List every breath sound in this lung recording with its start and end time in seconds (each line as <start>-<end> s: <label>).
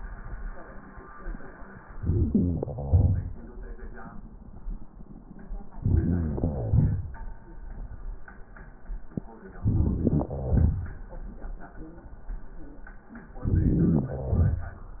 1.98-2.72 s: inhalation
2.74-4.20 s: exhalation
5.74-6.29 s: inhalation
6.27-7.45 s: exhalation
9.58-10.26 s: inhalation
9.58-10.26 s: crackles
10.25-11.77 s: exhalation
13.30-14.07 s: inhalation
14.05-15.00 s: exhalation